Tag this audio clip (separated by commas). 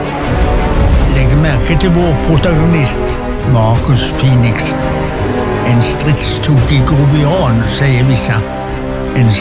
Music, Speech